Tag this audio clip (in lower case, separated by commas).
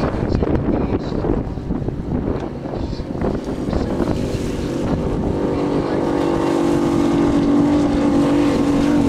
motorboat, auto racing, vehicle, boat, speech